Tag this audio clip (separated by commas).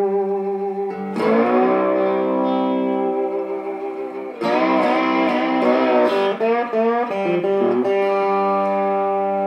Plucked string instrument, Music, Guitar, Musical instrument, Electric guitar